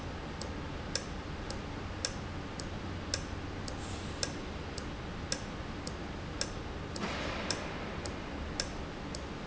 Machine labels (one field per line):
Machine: valve